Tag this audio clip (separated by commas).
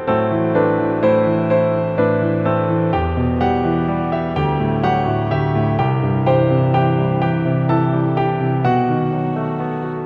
Music, Classical music